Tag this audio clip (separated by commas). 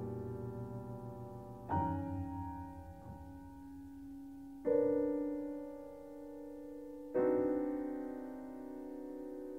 Music, Piano